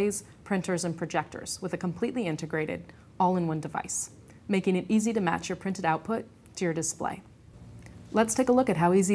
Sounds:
Speech

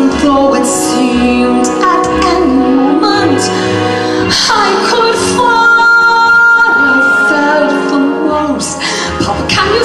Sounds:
Singing, Music

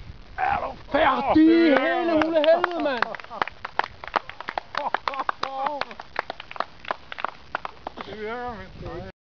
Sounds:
Speech

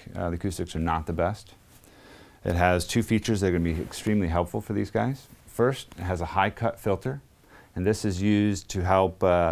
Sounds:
Speech

